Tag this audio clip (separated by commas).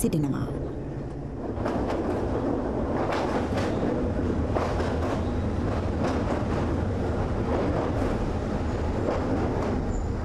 Speech, Rail transport, outside, rural or natural, Vehicle, Train